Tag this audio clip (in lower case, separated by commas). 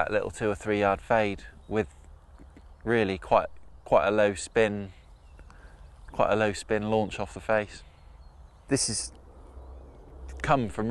speech